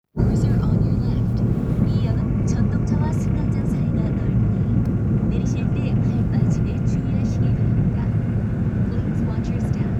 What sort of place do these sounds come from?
subway train